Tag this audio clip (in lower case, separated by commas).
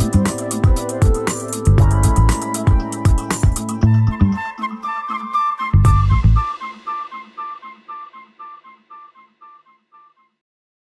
music